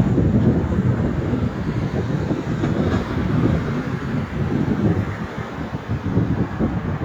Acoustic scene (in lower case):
street